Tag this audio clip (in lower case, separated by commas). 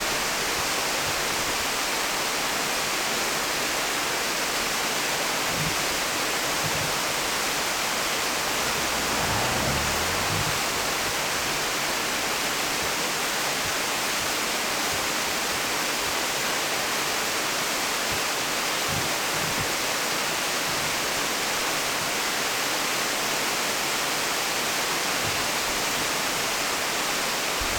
water